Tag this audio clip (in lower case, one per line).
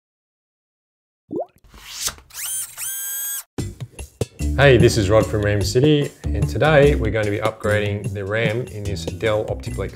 inside a small room
music
speech